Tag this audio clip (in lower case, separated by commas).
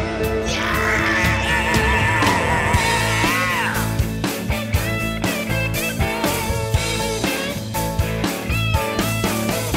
rock and roll, music